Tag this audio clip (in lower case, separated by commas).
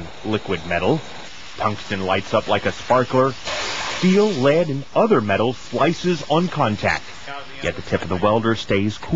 speech